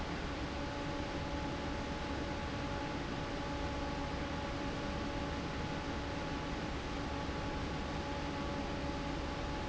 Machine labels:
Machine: fan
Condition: normal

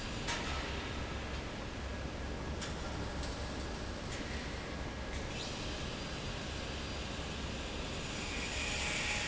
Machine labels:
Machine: fan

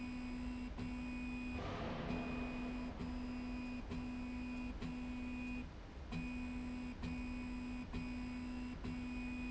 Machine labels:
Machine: slide rail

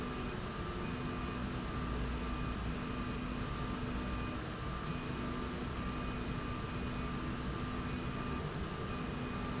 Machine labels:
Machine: slide rail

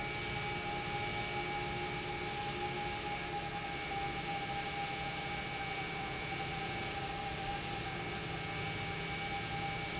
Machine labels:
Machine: pump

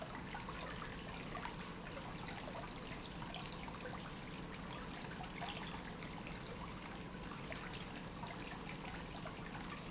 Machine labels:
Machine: pump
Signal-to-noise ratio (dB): 6 dB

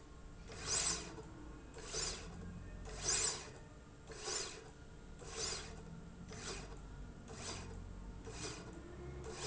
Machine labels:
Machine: slide rail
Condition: normal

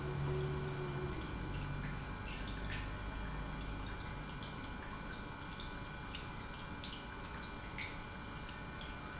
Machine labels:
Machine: pump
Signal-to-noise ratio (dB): 0 dB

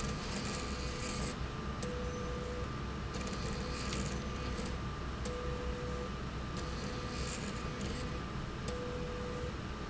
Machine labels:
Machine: slide rail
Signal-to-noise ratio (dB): -6 dB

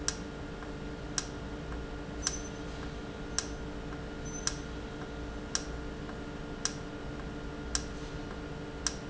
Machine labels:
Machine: valve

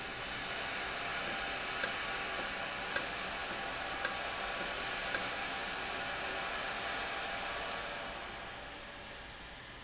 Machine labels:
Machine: valve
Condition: normal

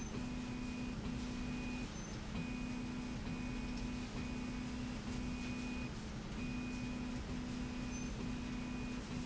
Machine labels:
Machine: slide rail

